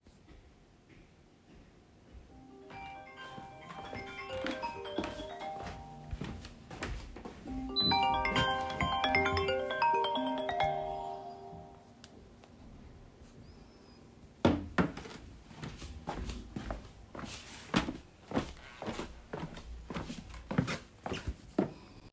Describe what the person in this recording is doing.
When the phone was ringing I walked to it and turned the ringing off, then walked around a bit.